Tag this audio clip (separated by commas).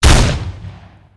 Gunshot, Explosion